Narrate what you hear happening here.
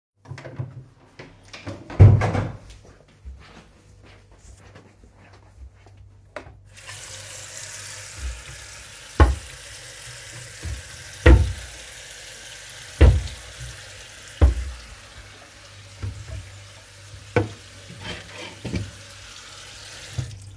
I entered the kitchen through the door, then I went and turned on the water faucet, after that I was opening the cupboard doors before I turned off the faucet